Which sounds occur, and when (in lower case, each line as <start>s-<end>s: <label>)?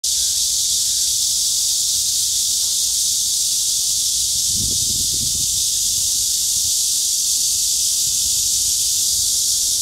0.0s-9.8s: insect
0.0s-9.8s: wind
3.8s-4.1s: wind noise (microphone)
4.4s-5.6s: wind noise (microphone)
5.8s-6.7s: wind noise (microphone)
8.0s-8.7s: wind noise (microphone)
9.1s-9.3s: wind noise (microphone)